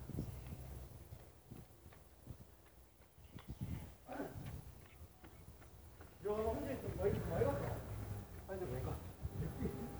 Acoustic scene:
residential area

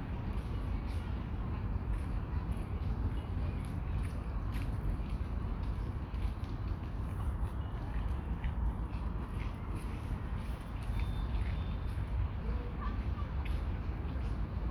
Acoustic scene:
park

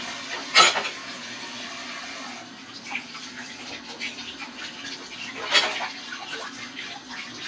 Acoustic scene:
kitchen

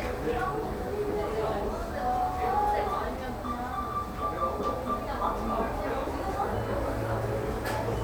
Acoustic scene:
cafe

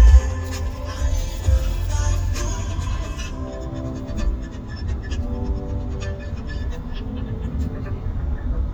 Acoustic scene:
car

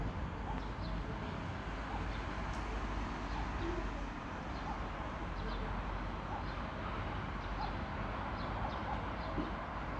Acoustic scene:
park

